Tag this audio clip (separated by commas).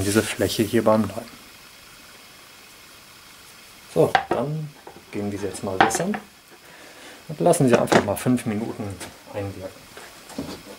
Wood, Rub